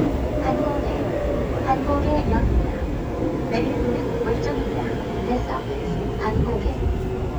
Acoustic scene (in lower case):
subway train